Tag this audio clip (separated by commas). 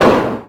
Explosion